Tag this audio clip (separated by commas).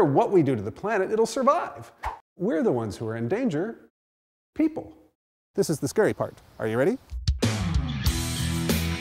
Music, Speech